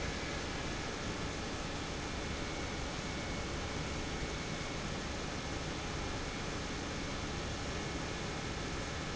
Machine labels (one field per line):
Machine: pump